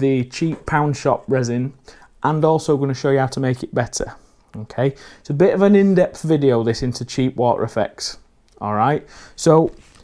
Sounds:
speech

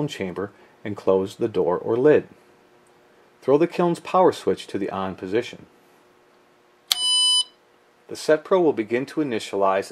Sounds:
speech
beep

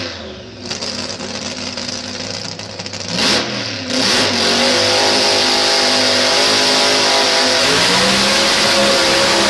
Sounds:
car passing by

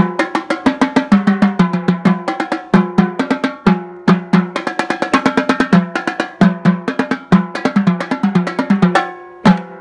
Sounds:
playing snare drum

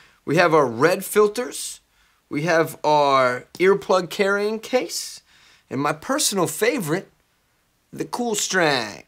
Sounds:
speech

